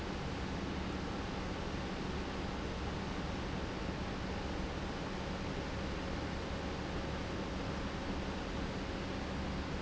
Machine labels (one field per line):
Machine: pump